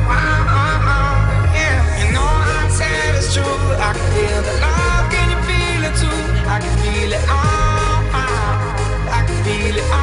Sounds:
tender music
music

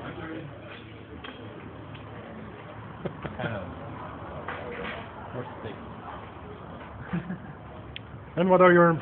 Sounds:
speech

